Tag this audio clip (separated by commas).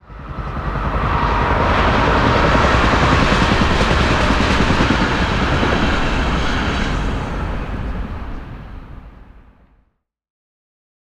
Train, Vehicle, Rail transport